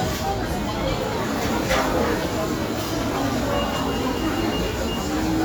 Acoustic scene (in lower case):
restaurant